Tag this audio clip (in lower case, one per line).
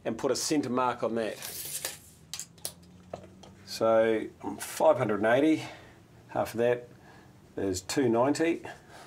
speech